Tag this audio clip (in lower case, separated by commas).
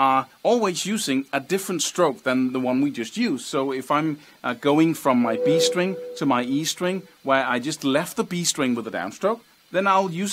music, speech